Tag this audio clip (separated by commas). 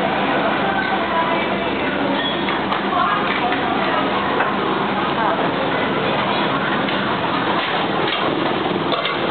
Speech